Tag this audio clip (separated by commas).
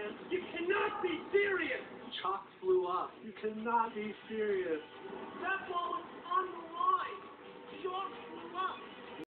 Speech